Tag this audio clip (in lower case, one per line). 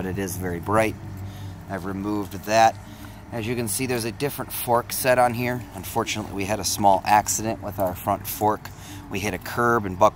speech